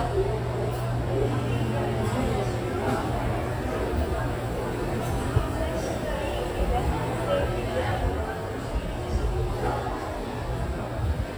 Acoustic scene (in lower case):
crowded indoor space